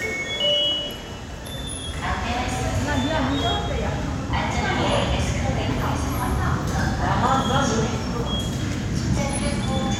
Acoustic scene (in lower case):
subway station